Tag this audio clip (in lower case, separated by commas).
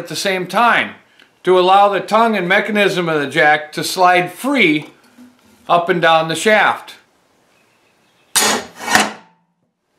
speech